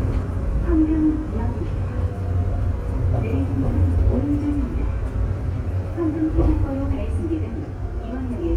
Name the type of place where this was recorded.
subway train